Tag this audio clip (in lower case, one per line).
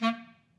musical instrument
wind instrument
music